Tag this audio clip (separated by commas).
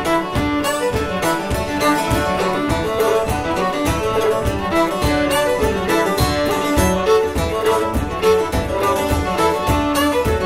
Bowed string instrument, fiddle